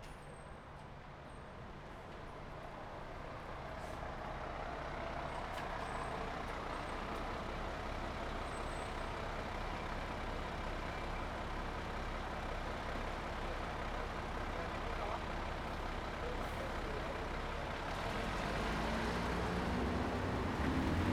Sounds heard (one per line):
bus engine accelerating
people talking
bus engine idling
car engine accelerating
bus
car
bus brakes
bus compressor